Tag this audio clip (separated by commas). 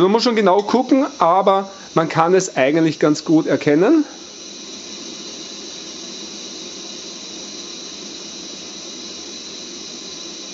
Speech